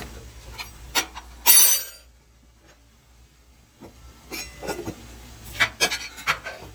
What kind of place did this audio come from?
kitchen